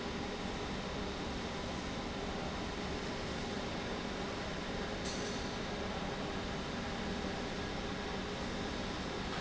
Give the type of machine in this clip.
pump